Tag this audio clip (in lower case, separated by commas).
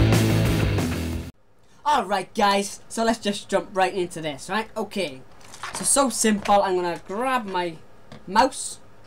speech, music